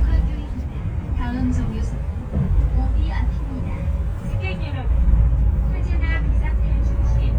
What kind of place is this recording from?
bus